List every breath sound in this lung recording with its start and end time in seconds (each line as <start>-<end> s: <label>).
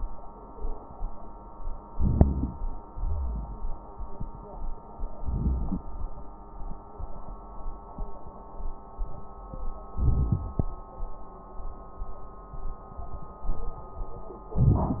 1.91-2.66 s: inhalation
1.91-2.66 s: wheeze
2.89-3.64 s: exhalation
2.89-3.64 s: wheeze
5.22-5.87 s: inhalation
5.22-5.87 s: crackles
9.97-10.44 s: inhalation
9.97-10.44 s: crackles
14.57-15.00 s: inhalation